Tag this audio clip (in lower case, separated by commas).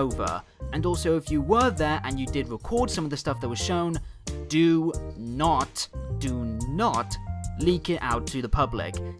music, speech